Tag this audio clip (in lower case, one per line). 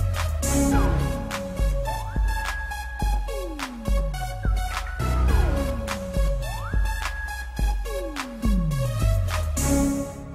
music